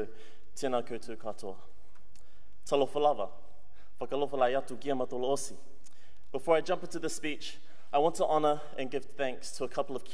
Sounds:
man speaking, monologue, Speech

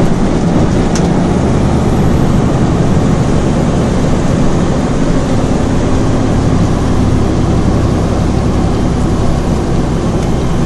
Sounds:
Vehicle

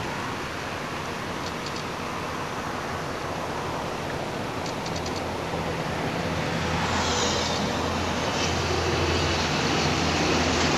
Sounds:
Vehicle

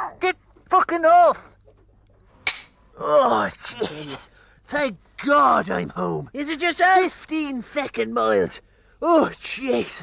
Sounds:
Speech, inside a small room

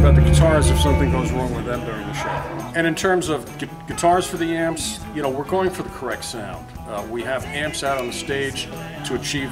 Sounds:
Music, Speech

